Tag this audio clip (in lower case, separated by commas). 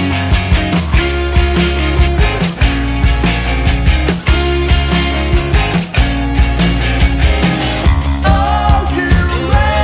music